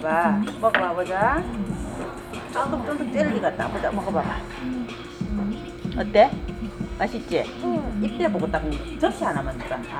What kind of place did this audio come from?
restaurant